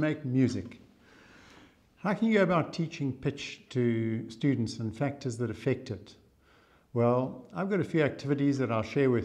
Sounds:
speech

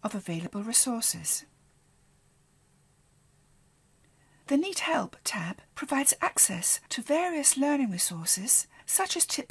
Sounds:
speech

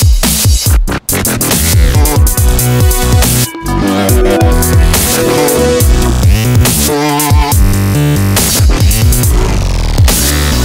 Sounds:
music, dubstep

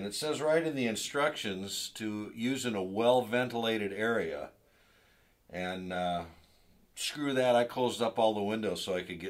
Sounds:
speech

